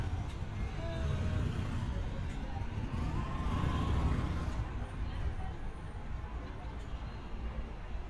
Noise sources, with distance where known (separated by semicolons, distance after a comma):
medium-sounding engine; person or small group talking